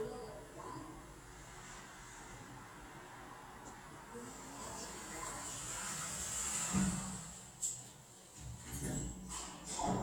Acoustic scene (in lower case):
elevator